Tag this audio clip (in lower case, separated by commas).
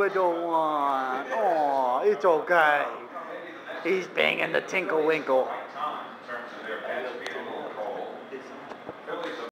speech